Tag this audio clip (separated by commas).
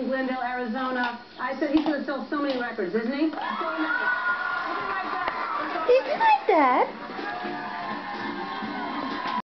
Speech, Music